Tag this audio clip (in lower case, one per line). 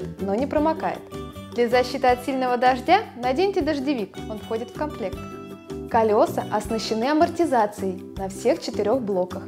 speech
music